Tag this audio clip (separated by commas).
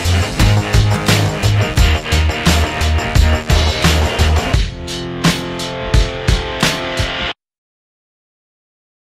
Music